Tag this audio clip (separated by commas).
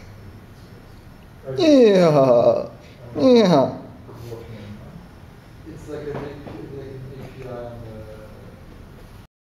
Speech